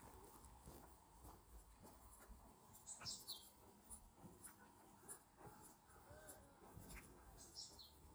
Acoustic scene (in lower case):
park